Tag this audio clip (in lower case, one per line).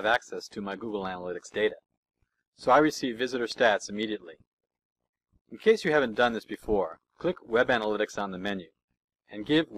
speech